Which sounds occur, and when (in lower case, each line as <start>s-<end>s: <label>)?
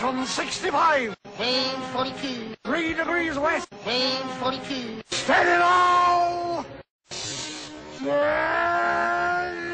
0.0s-6.6s: conversation
5.1s-5.2s: generic impact sounds
5.1s-6.8s: music
5.1s-6.6s: man speaking
7.0s-9.7s: sound effect
7.9s-9.7s: human voice